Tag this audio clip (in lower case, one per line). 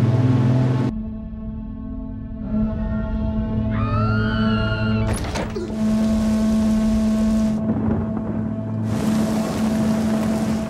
foghorn